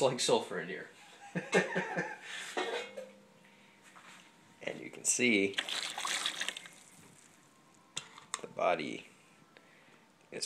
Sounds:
Speech

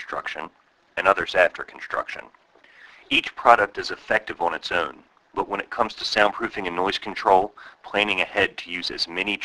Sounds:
Speech

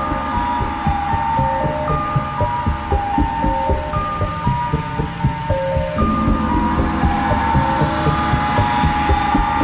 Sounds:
Music

